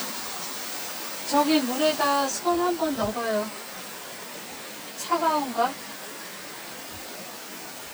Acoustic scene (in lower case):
park